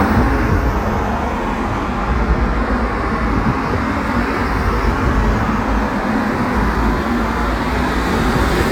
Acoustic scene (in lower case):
street